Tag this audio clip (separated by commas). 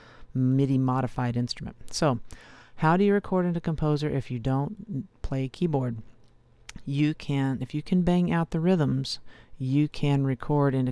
Speech